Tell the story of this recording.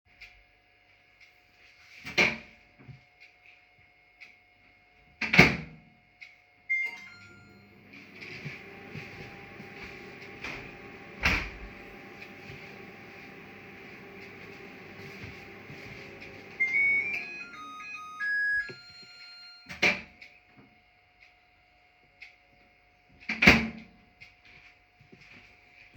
I opened and closed the microwave, started it and went to the balcony door to open it to let in some fresh air. Then I went back to open the finished microwave and open and close it again.